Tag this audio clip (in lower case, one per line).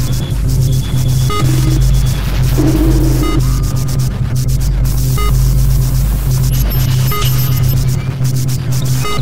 white noise
music
ambient music